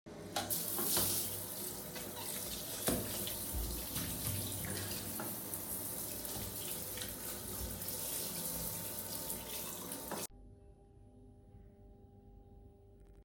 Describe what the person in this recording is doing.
I was getting fresh to go to work.